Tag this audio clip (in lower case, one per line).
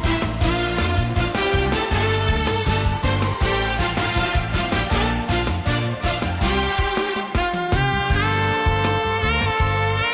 music